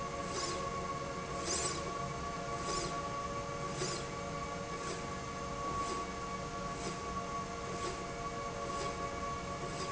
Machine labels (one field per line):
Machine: slide rail